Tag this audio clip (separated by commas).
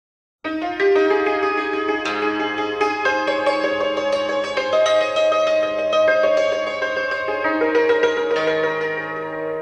Music